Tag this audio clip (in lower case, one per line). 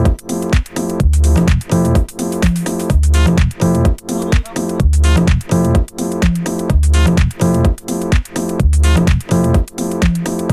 music
speech
techno
electronic music